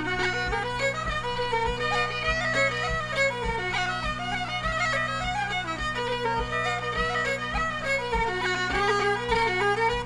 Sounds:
traditional music, music

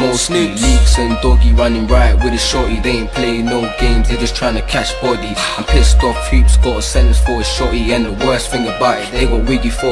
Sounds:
music

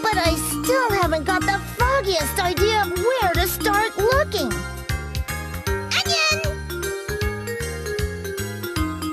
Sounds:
speech, music

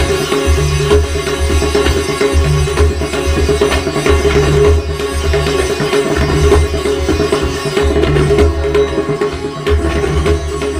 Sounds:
playing sitar

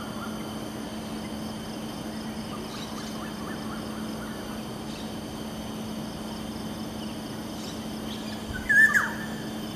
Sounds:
tweet, bird, bird song

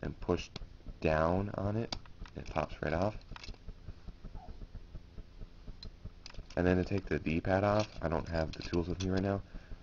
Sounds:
inside a small room, speech

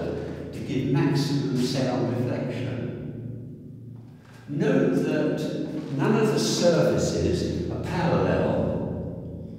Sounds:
reverberation, speech

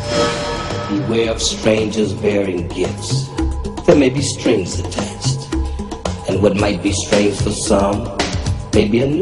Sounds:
speech, music

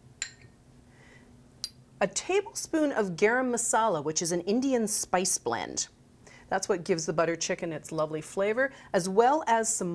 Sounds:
speech

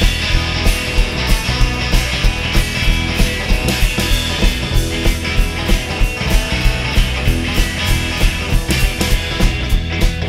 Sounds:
music

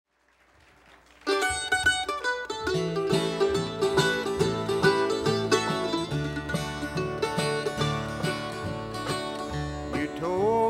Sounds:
music, country, mandolin, plucked string instrument, bluegrass, guitar, banjo, musical instrument

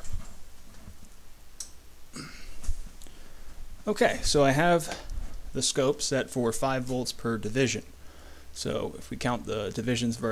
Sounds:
speech, inside a small room

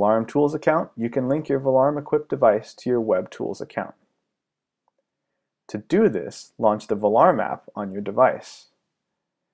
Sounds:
speech

